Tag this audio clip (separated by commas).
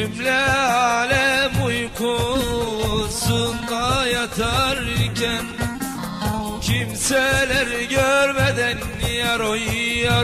Middle Eastern music, Music